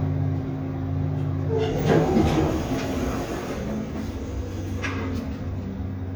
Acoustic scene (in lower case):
elevator